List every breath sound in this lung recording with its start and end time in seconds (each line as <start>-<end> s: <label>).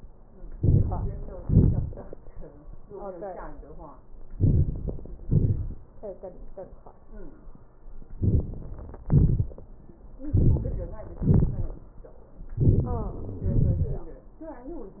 0.51-1.06 s: inhalation
1.41-1.95 s: exhalation
4.33-4.75 s: inhalation
5.26-5.76 s: exhalation
8.19-8.48 s: inhalation
9.08-9.53 s: exhalation
10.30-10.74 s: inhalation
11.22-11.74 s: exhalation
12.60-13.15 s: inhalation
13.48-14.07 s: exhalation